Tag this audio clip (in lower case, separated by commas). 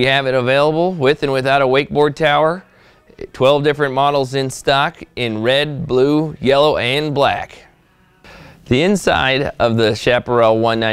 speech